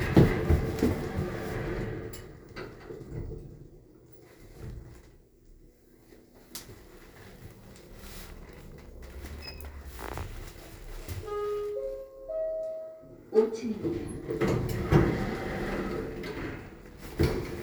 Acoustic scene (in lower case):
elevator